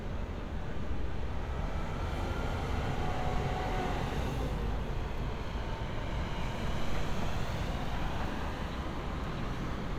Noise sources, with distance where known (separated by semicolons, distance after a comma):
engine of unclear size